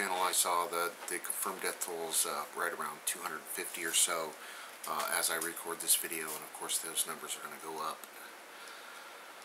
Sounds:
Speech

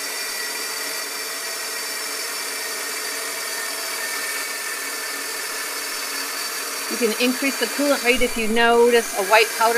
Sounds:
Speech

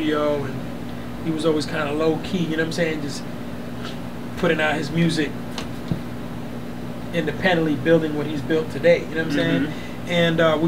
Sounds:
inside a small room, Speech

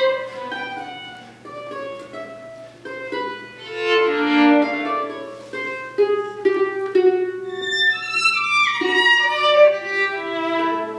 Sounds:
Music, Pizzicato, Violin

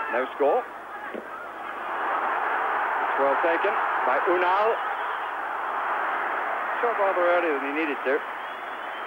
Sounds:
Speech

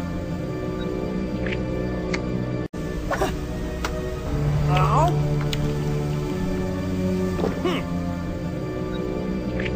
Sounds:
Music

